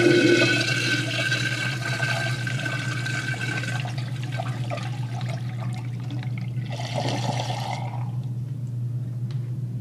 A toilet flushes